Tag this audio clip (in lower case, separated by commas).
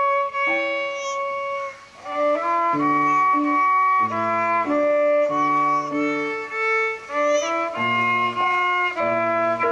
musical instrument, music, fiddle